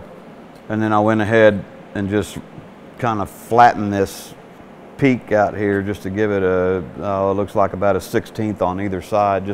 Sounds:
arc welding

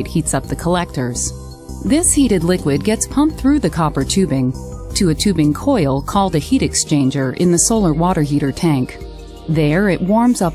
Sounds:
Music, Speech

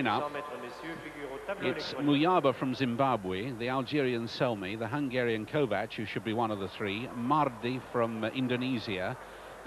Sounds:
Speech

